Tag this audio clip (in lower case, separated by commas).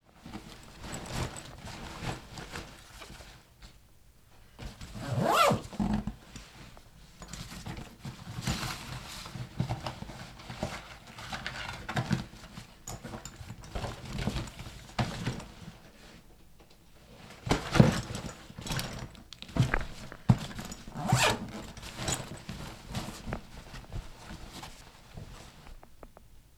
zipper (clothing), domestic sounds